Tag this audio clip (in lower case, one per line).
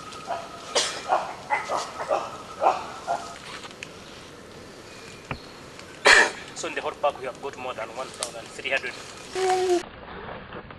animal